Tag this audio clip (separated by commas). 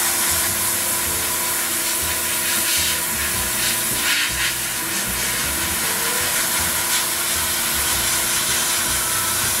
Music, inside a small room